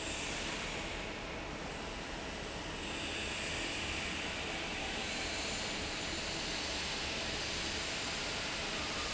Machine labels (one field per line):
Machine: fan